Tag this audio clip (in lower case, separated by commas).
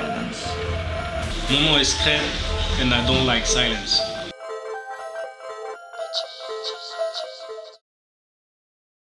music, speech